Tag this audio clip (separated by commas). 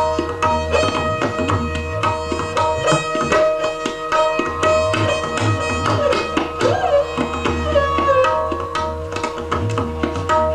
Percussion, Drum, Tabla